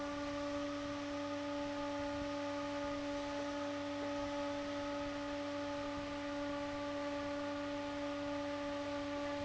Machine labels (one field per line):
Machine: fan